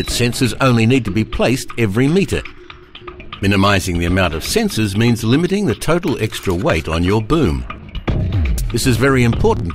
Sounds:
Speech, Music

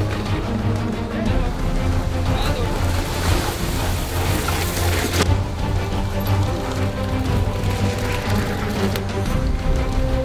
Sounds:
Music, Speech

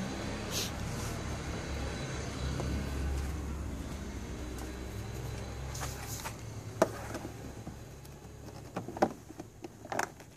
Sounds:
Engine, Vehicle

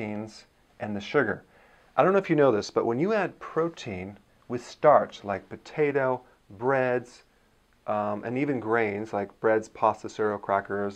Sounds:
Speech

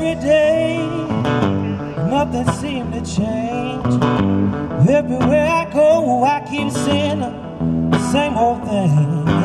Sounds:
Guitar, Country, Singing

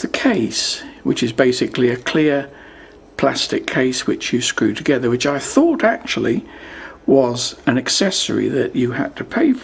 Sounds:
Speech

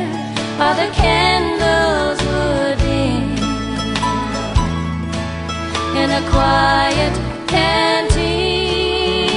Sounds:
Country, Music

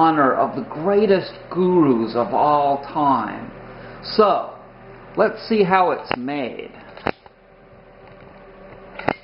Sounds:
inside a small room, Speech

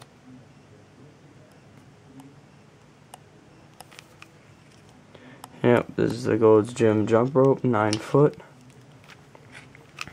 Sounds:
Speech, inside a small room

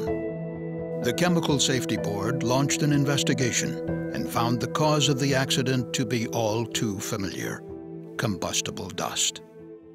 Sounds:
Music, Speech

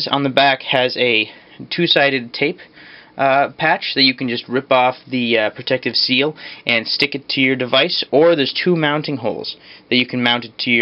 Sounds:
Speech

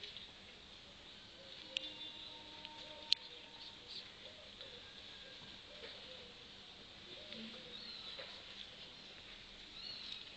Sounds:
Speech

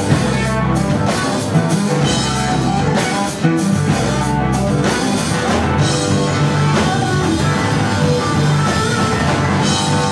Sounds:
Music

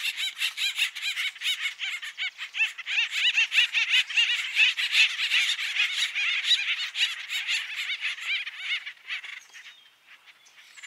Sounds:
woodpecker pecking tree

